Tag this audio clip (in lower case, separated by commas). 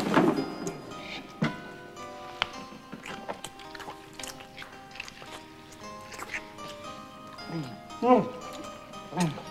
music